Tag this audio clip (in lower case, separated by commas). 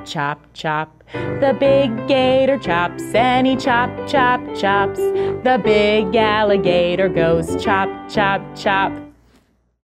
music